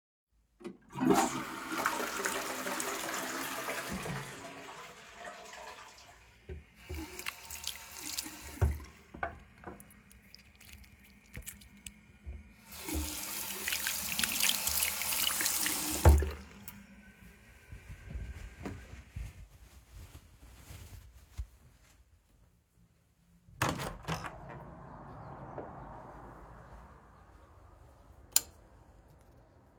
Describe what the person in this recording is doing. I flushed the toilet and then washed my hands using soap from the dispenser. After washing my hands, I dried them with a towel. I opened the window and light street noise could be heard outside. Finally, I turned off the light.